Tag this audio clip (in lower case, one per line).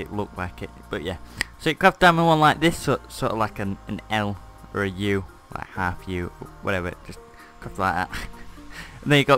music
speech